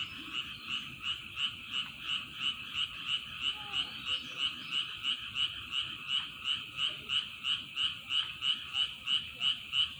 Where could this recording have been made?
in a park